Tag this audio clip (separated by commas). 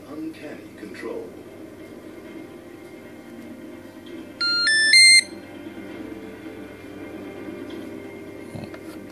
Music, Speech